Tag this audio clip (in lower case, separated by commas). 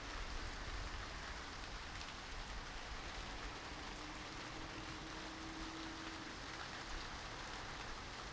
rain, water